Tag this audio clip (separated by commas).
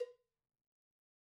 Cowbell, Bell